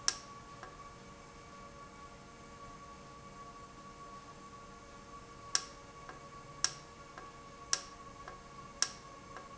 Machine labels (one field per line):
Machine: valve